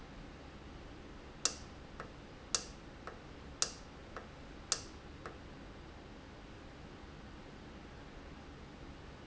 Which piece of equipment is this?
valve